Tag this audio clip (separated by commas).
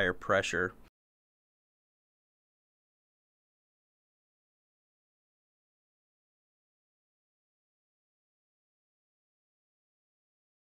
Speech